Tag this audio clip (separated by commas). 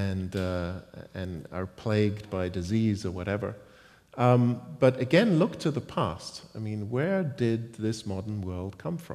Speech